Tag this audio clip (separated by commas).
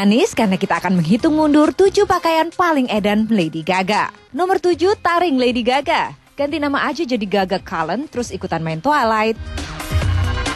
Music, Speech